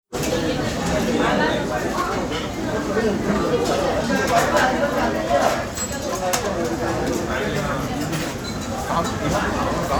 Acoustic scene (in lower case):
restaurant